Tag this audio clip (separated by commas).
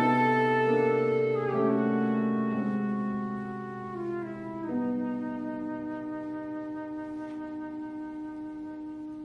Flute, Piano, Musical instrument, Music